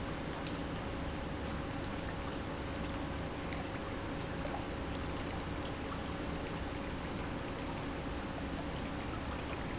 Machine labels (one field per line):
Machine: pump